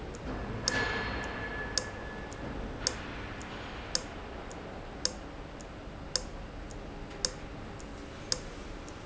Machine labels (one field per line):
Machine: valve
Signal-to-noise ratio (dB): -6 dB